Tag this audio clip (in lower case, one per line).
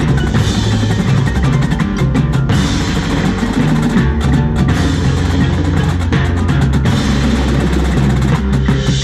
playing timpani